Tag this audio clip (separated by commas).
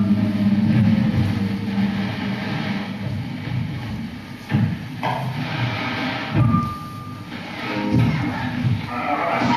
Music